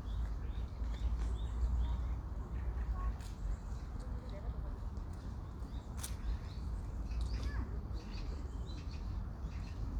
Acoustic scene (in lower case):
park